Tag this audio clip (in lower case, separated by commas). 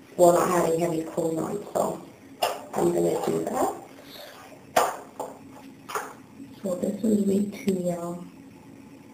inside a small room, speech